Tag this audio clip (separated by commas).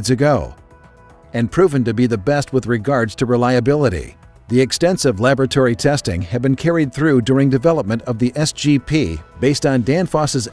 Music, Speech